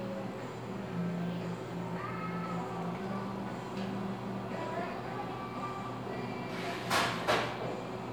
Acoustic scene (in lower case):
cafe